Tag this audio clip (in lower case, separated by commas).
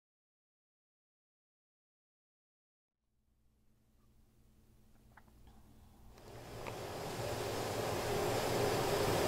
speech, silence, inside a large room or hall